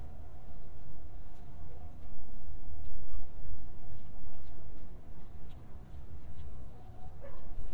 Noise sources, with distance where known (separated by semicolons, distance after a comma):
dog barking or whining, far